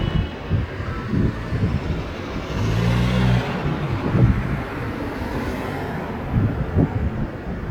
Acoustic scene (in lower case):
street